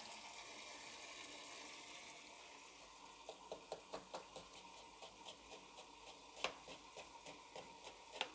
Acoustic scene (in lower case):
kitchen